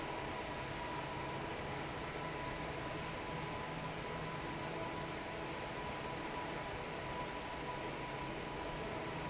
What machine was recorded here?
fan